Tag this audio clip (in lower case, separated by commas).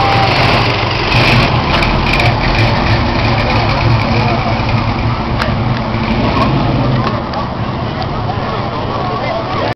vehicle, speech, car